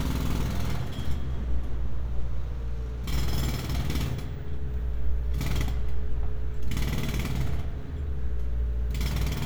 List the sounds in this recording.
jackhammer